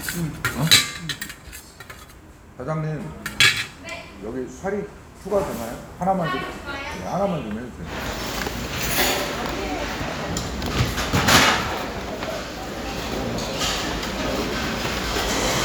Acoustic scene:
restaurant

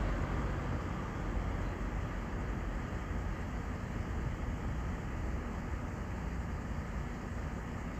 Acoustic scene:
street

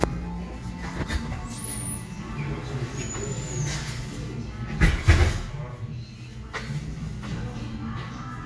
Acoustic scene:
cafe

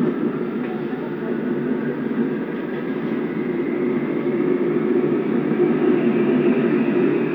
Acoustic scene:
subway train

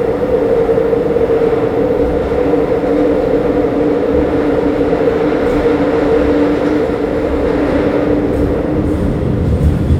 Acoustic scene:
subway train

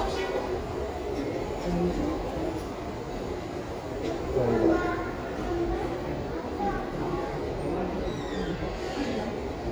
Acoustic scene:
crowded indoor space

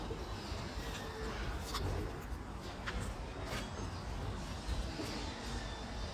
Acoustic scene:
residential area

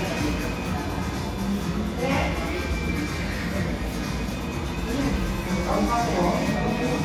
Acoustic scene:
cafe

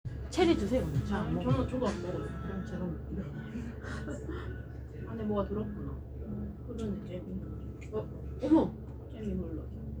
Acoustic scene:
cafe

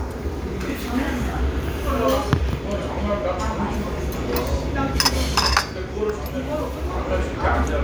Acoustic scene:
restaurant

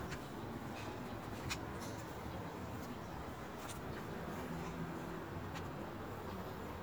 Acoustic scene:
residential area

